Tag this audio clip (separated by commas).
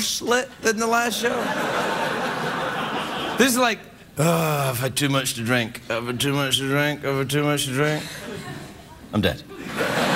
Speech